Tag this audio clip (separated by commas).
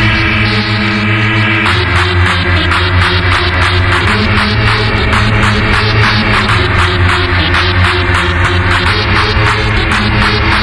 Music